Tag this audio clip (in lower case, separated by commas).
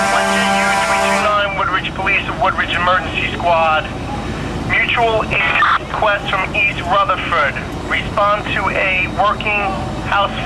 speech